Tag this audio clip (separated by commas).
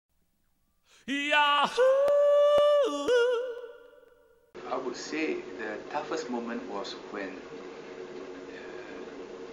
Speech